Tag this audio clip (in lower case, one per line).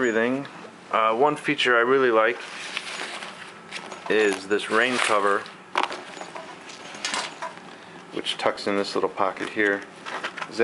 inside a small room
speech